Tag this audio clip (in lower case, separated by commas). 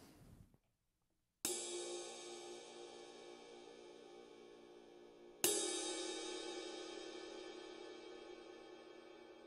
cymbal